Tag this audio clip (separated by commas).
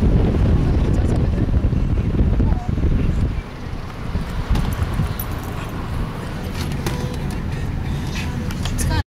Music, Speech